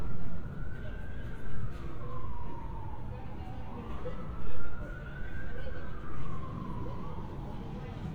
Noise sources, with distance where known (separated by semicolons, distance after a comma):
small-sounding engine; siren, far; person or small group talking, far